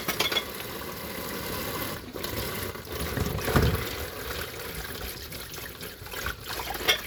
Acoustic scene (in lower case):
kitchen